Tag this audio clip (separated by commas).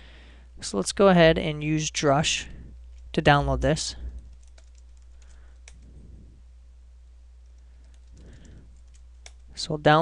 Speech